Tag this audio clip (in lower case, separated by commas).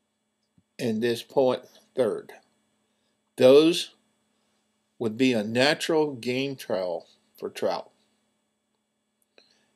speech